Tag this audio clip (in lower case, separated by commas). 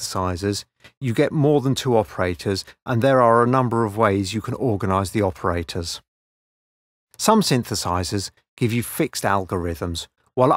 speech